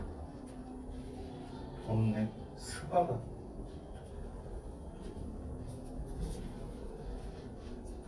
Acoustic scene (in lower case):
elevator